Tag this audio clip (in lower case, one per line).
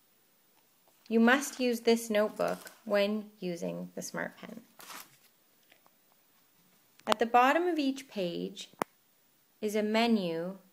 speech